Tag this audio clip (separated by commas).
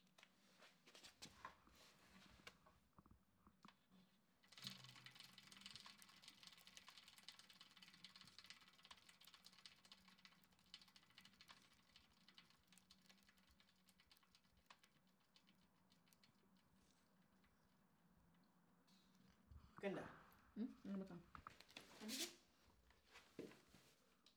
Vehicle, Bicycle